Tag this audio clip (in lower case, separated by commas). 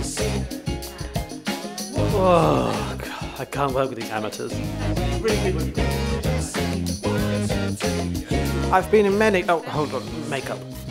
speech, music